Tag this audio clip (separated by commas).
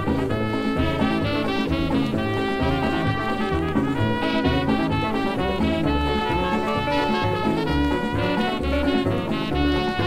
Musical instrument, Music